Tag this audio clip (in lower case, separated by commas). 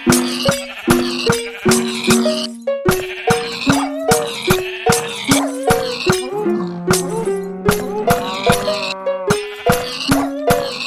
music, animal